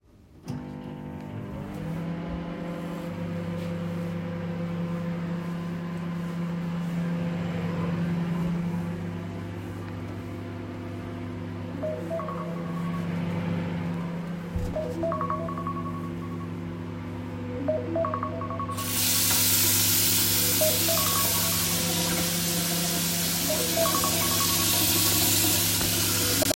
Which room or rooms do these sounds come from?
kitchen